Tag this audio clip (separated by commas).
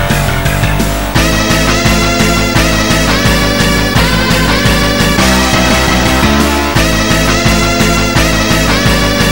Music